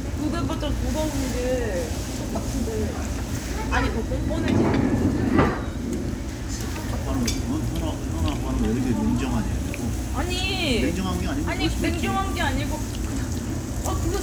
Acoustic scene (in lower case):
crowded indoor space